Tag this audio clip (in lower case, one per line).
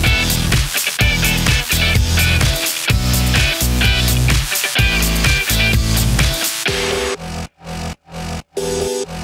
music